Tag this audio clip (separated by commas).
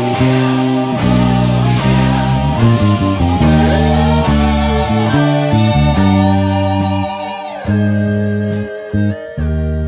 playing bass guitar